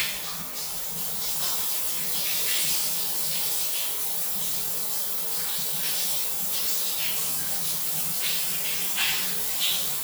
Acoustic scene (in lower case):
restroom